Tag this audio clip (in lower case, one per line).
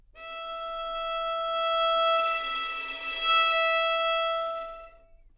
bowed string instrument
music
musical instrument